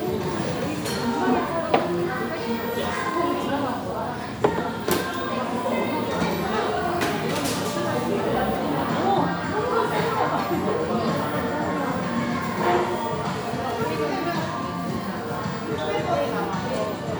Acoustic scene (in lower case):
crowded indoor space